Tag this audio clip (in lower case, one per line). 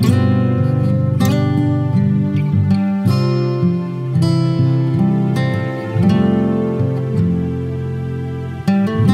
music